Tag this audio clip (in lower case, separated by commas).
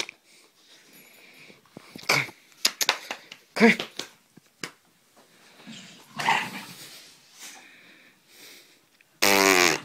animal, pets, dog, fart